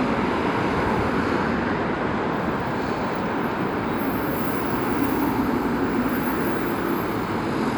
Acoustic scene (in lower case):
street